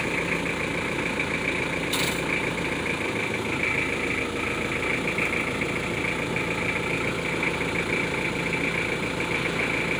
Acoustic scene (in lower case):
residential area